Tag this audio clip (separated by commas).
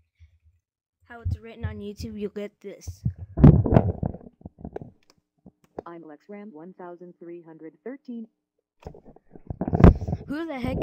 Speech